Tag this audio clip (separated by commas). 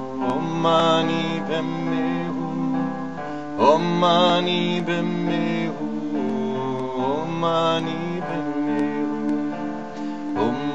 Mantra, Music